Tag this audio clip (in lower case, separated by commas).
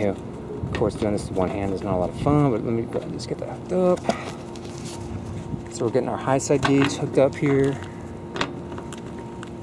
speech